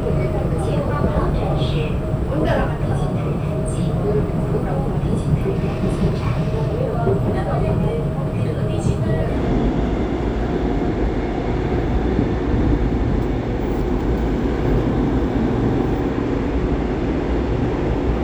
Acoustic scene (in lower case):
subway train